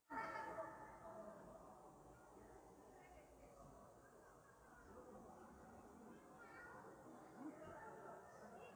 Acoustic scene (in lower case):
park